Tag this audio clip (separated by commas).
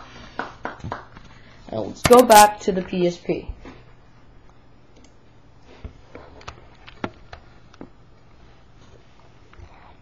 Speech, inside a small room